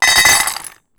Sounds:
dishes, pots and pans
domestic sounds

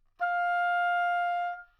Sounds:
musical instrument
woodwind instrument
music

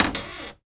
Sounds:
domestic sounds
cupboard open or close
door

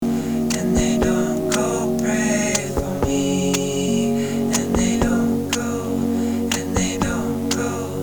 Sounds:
human voice

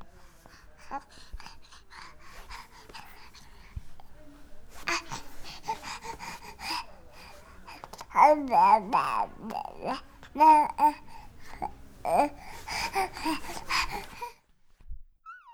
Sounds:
speech
human voice

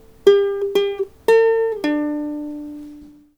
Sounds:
plucked string instrument
music
musical instrument

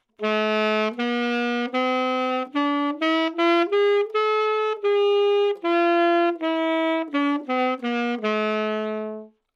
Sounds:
wind instrument
musical instrument
music

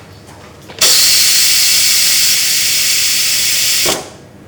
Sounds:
hiss

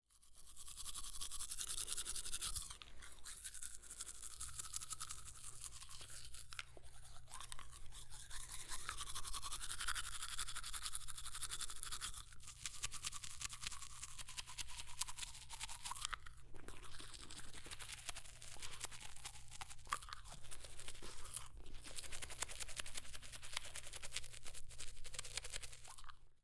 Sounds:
domestic sounds

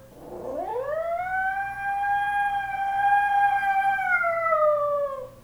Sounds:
dog
domestic animals
animal

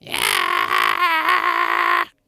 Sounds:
singing
male singing
human voice

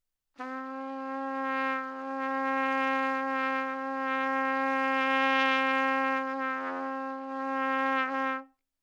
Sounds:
trumpet
musical instrument
music
brass instrument

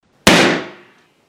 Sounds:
explosion
gunfire

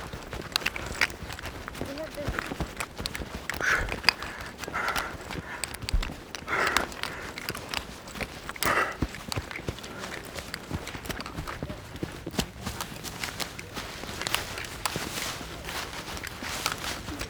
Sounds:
run

